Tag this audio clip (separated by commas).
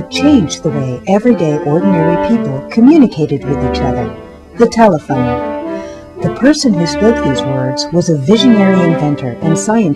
Speech, Music